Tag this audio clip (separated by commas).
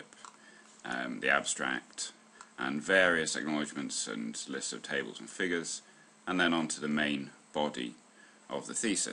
Speech